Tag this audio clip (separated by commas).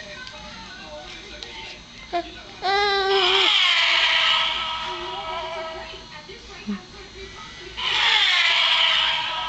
Speech